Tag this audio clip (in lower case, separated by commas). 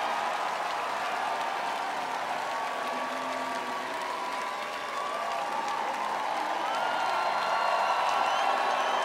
music, speech